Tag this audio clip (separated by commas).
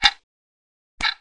Clock, Mechanisms